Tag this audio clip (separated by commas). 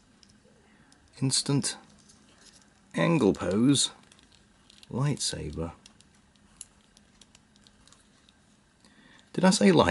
Speech